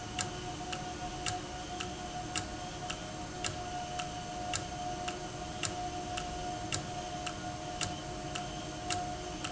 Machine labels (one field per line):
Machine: valve